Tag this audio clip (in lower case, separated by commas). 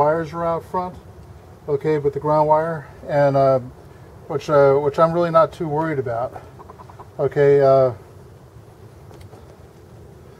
speech